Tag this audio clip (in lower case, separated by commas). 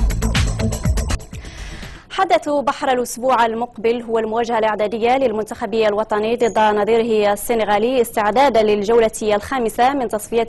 music, speech